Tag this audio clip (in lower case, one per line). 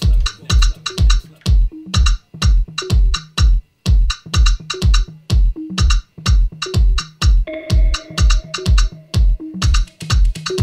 inside a small room
music
house music